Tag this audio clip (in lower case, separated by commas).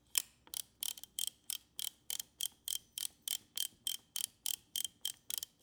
mechanisms, camera